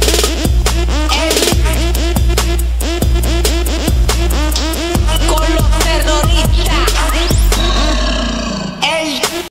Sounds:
music, funk

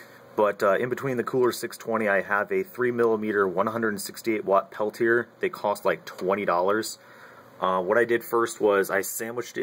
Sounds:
speech

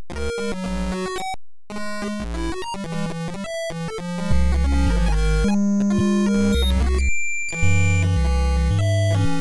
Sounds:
music

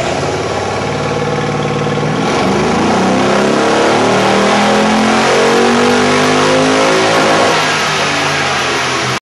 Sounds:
car, vehicle

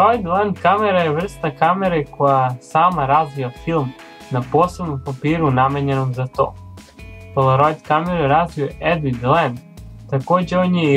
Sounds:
music, speech

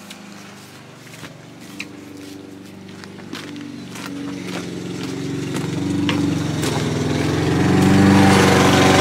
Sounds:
lawn mowing, lawn mower

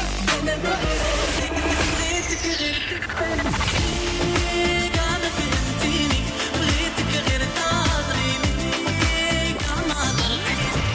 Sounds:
music

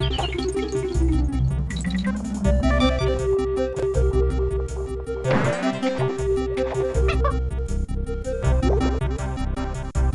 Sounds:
music

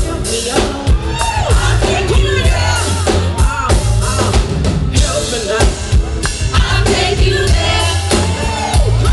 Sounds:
female singing, music

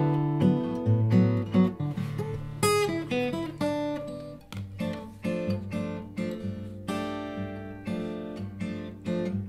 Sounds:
musical instrument, plucked string instrument, music, strum, guitar, acoustic guitar

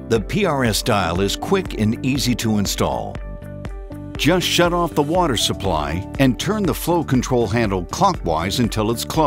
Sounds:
speech, music

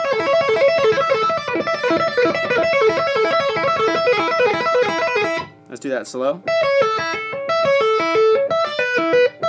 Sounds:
tapping guitar

